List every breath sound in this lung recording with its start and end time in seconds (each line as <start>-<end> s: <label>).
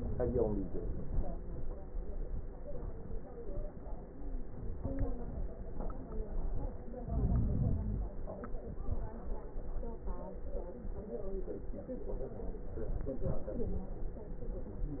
7.03-8.17 s: inhalation
7.03-8.17 s: crackles